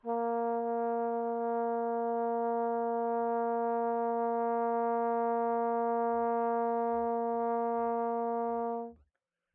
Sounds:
Brass instrument, Musical instrument, Music

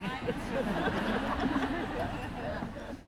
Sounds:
Laughter, Human voice

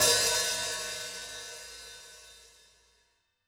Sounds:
Musical instrument, Music, Percussion, Hi-hat, Cymbal

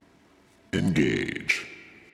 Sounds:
Speech, Male speech, Human voice

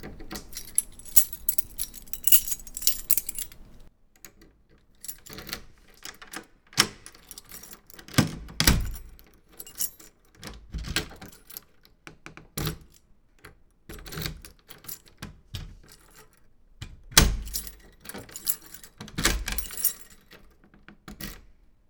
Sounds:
home sounds, Keys jangling

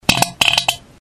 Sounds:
Fart

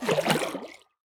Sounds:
splatter, Liquid

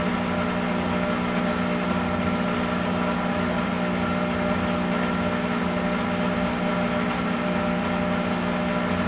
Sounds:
Engine

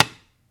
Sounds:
Tap

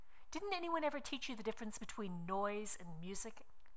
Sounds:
Female speech, Speech, Human voice

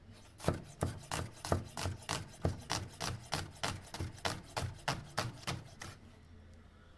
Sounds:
home sounds

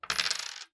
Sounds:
home sounds, Coin (dropping)

